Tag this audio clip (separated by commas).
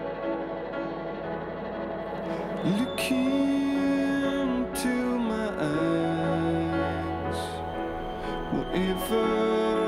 Music